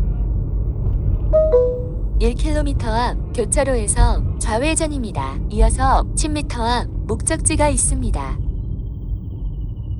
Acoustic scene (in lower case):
car